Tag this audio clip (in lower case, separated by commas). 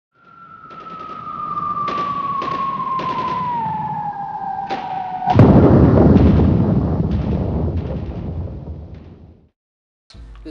thump